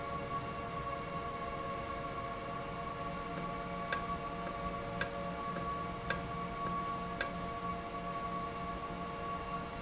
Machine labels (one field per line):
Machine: valve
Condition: normal